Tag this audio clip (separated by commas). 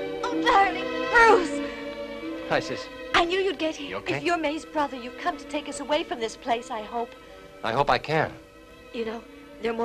Speech, Music